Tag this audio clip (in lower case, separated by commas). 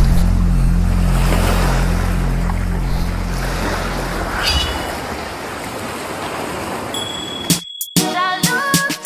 music, outside, rural or natural